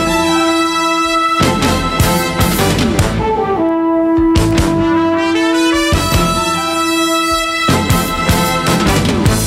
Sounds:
Saxophone, Music

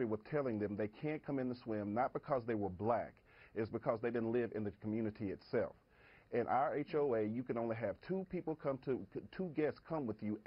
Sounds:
Speech

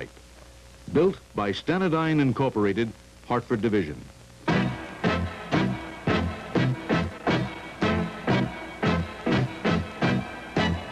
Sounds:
Speech, Music

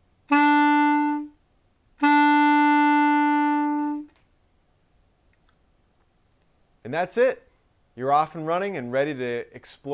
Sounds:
playing clarinet

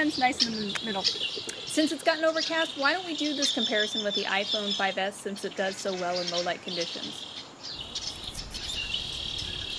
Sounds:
Bird vocalization, Bird, Chirp

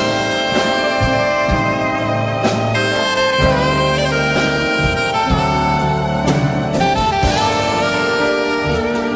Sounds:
Music, Orchestra

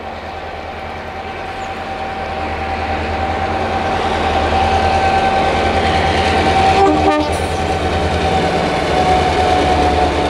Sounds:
Vehicle, Train horn, Train

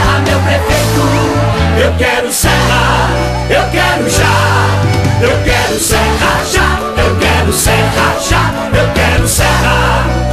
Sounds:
Music

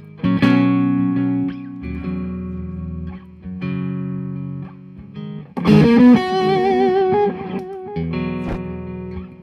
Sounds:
Musical instrument, Electric guitar, Plucked string instrument, Guitar, Music, Strum

